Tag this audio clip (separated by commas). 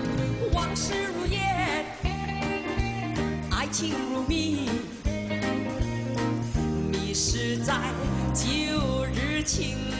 Music